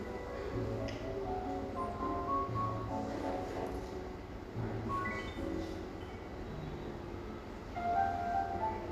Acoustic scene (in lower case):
cafe